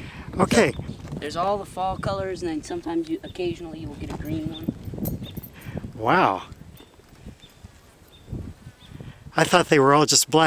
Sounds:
outside, rural or natural, speech

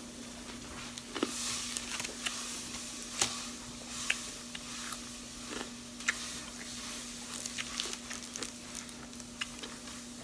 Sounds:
people eating apple

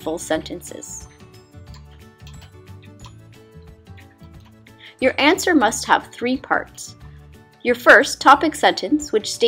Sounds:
music, speech

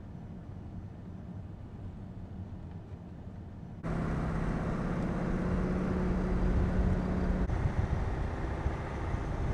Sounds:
vehicle, car, outside, urban or man-made

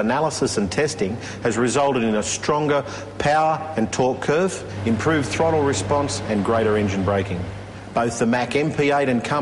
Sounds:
speech

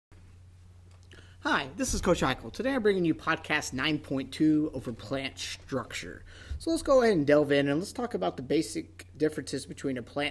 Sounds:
speech

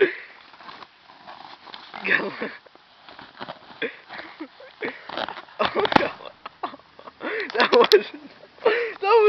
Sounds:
speech

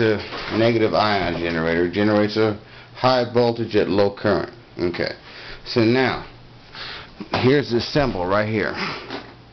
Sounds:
speech

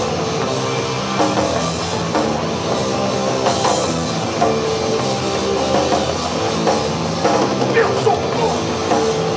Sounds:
singing, music

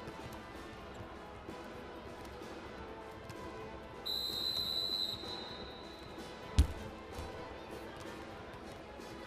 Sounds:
music

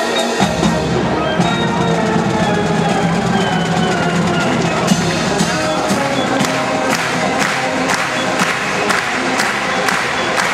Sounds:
music

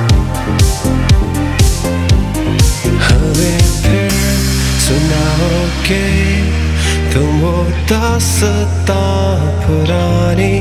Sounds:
music

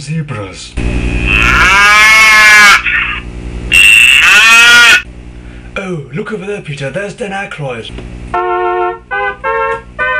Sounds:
animal, speech, music

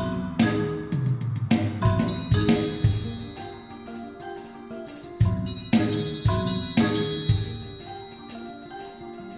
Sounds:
mallet percussion, glockenspiel, xylophone

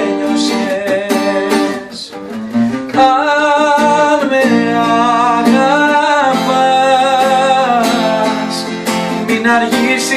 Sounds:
music

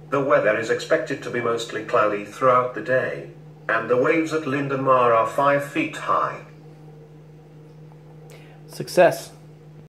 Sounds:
speech

